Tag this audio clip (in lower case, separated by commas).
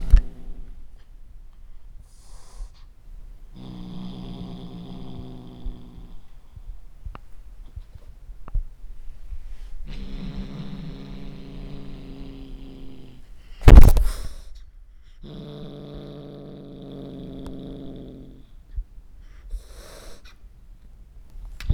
hiss, animal, growling, cat, pets